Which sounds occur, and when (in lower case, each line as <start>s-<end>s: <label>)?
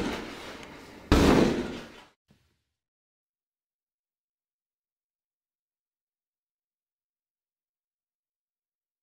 0.0s-2.1s: generic impact sounds